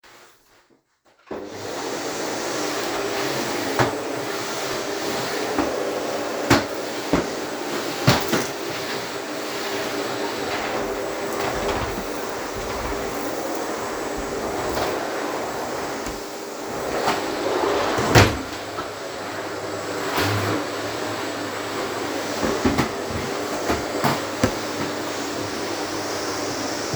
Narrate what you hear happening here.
I vacuum cleaned the floor in the room. I moved the vacuum cleaner across both carpeted and non-carpeted areas.